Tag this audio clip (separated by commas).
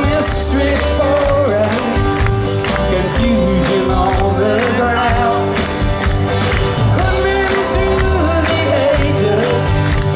Music